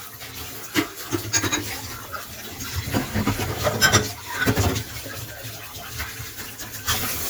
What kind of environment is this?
kitchen